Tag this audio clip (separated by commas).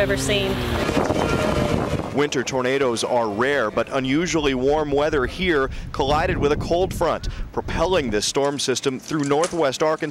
Speech